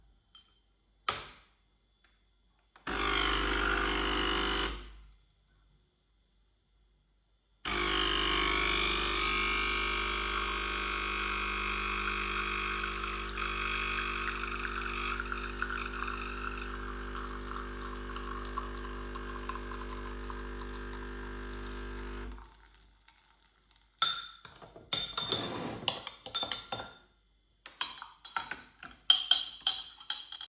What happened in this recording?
I pressed the 'on' button on my coffee machine, and it started the process. In the background, the coffee pouring into my mug was audible. Then when the machine finished, I took my mug and stirred the coffee with a spoon.